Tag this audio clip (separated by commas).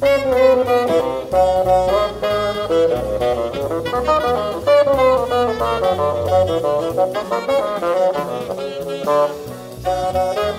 playing bassoon